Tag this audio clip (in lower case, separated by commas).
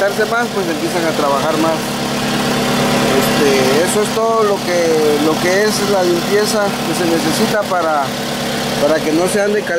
car engine idling